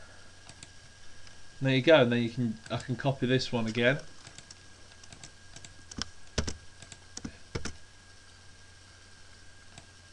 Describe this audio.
A man is typing and talking